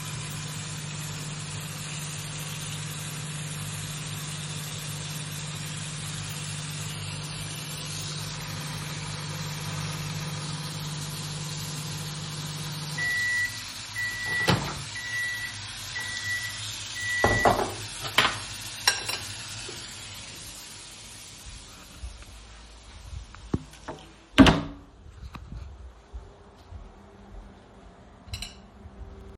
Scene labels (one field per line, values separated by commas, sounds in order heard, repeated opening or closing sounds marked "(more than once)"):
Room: kitchen, bedroom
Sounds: running water